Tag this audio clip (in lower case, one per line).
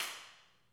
hands
clapping